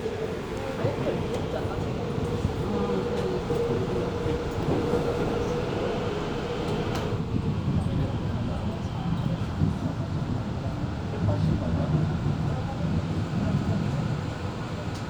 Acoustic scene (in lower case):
subway train